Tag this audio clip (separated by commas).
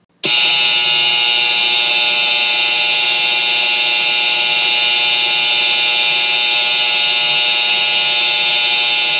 Buzzer